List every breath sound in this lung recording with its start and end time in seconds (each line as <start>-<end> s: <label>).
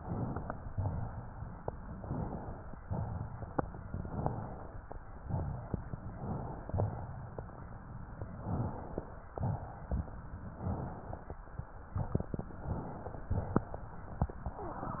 0.00-0.67 s: inhalation
0.72-1.50 s: exhalation
2.03-2.70 s: inhalation
2.81-3.59 s: exhalation
5.24-6.02 s: exhalation
6.18-6.66 s: inhalation
6.68-7.38 s: exhalation
8.42-9.13 s: inhalation
9.35-10.10 s: exhalation
10.64-11.39 s: inhalation
12.50-13.28 s: inhalation
13.41-14.19 s: exhalation